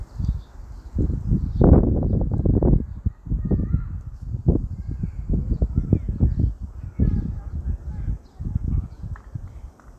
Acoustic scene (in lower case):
park